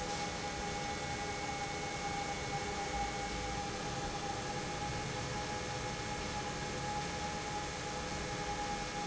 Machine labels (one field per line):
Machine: pump